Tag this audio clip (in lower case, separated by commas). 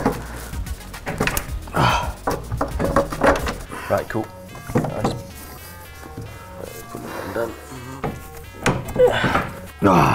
speech, music